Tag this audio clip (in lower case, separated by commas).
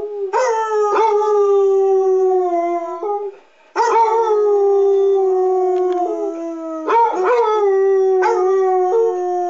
dog baying